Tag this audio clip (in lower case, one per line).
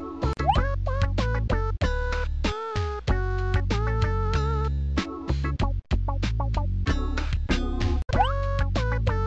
music